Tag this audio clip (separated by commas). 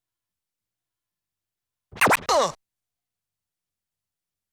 Scratching (performance technique), Musical instrument, Music